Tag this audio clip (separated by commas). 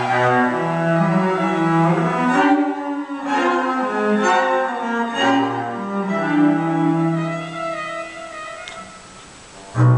Bowed string instrument, Music, fiddle, Musical instrument, Double bass, Cello